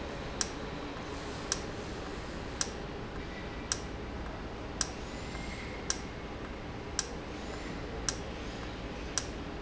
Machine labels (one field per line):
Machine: valve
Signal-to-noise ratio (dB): -6 dB